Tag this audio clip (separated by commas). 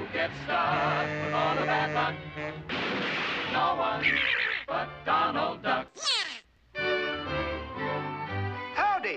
Music, Speech